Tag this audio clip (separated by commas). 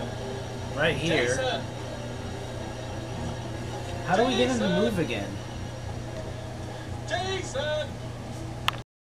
Speech